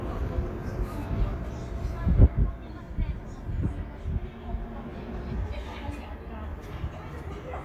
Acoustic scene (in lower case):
residential area